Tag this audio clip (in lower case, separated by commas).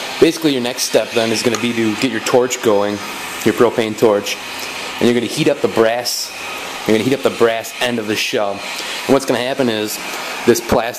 speech